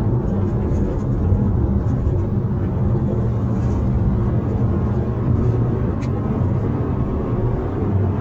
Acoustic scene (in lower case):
car